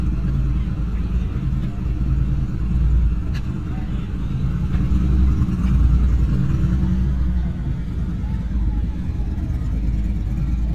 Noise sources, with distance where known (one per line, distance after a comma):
medium-sounding engine, near
person or small group talking